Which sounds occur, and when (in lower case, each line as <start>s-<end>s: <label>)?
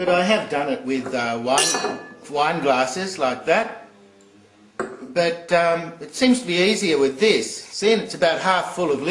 0.0s-2.0s: male speech
0.0s-9.1s: mechanisms
0.8s-1.5s: glass
1.4s-2.1s: clink
2.3s-3.8s: male speech
4.1s-4.3s: tick
4.8s-5.1s: glass
5.1s-9.1s: male speech